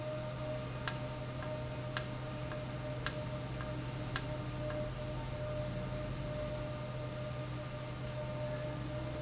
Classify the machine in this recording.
valve